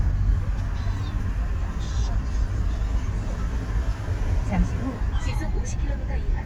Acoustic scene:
car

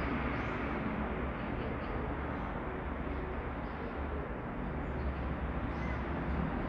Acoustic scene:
street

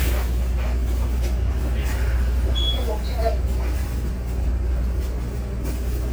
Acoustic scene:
bus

